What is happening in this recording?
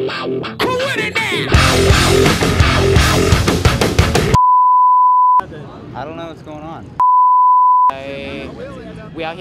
Heavy rock music followed by a bleep, adult male voice then another bleep